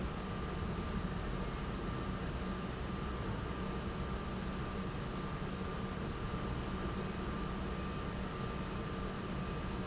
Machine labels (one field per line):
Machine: pump